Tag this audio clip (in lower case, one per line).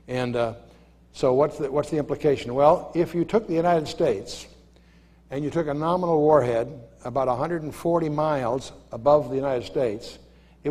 speech